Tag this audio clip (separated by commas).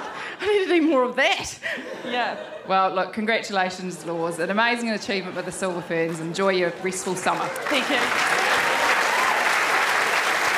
Applause